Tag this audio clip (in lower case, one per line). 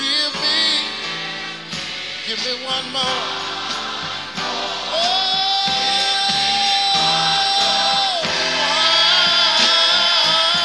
gospel music
music